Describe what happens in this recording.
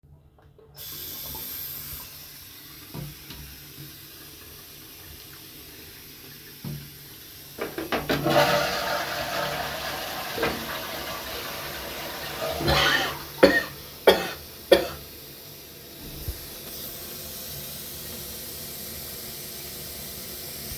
The toilet is flushes while water is running in the background